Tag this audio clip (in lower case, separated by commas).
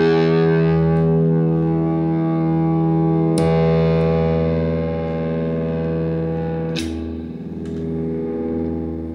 guitar, effects unit, musical instrument, music, plucked string instrument